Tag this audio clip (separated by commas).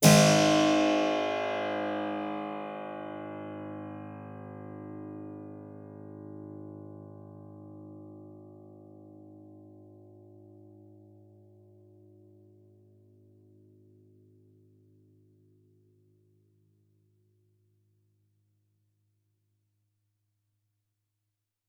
Keyboard (musical), Music, Musical instrument